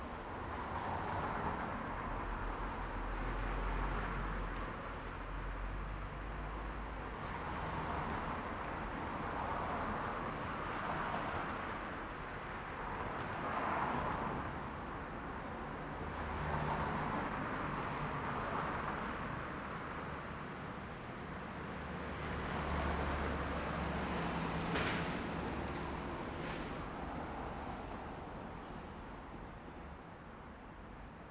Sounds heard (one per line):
bus engine accelerating
bus
car wheels rolling
car engine accelerating
bus engine idling
bus compressor
car